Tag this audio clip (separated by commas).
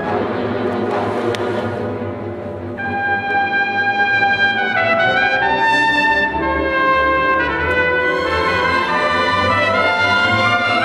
Trumpet, Brass instrument